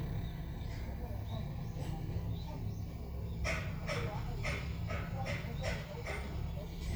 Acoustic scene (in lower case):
residential area